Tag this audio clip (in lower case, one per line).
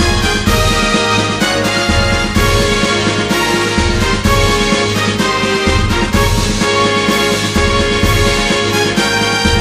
music